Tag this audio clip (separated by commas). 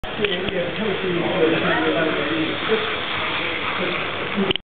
Speech